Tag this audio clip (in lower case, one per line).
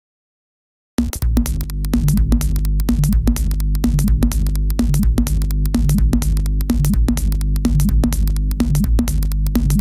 drum machine
music